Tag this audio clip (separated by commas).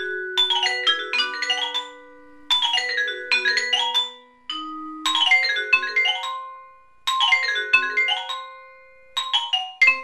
playing vibraphone, Music, Vibraphone